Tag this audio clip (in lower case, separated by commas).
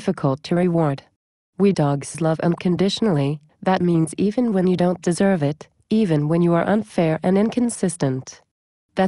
speech